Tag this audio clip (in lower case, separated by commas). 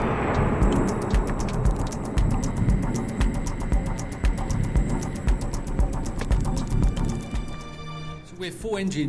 music, speech